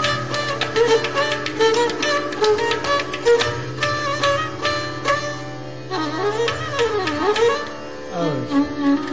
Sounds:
Classical music, Carnatic music, Music of Asia, Music

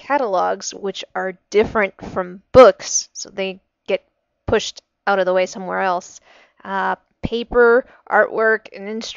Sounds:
woman speaking, Speech

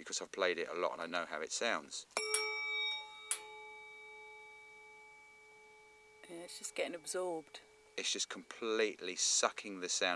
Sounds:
Musical instrument, Percussion, Speech, Music

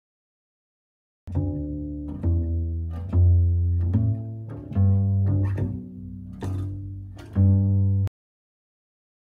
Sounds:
playing double bass

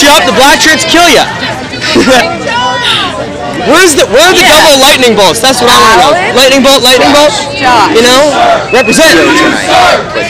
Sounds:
Speech

